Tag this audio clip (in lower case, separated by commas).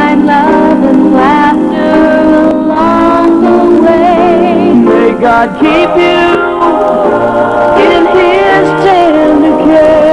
music, inside a large room or hall